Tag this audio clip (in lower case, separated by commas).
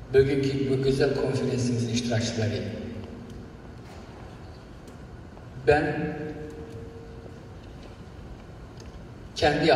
male speech, speech